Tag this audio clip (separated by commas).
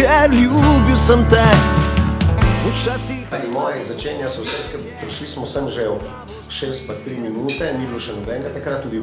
Music, Speech